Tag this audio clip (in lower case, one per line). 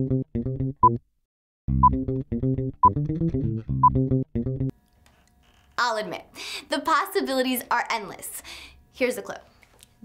music
speech